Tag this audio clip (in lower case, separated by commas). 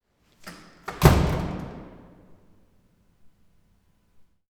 door, home sounds, slam